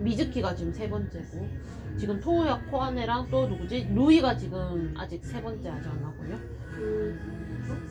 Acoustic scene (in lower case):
cafe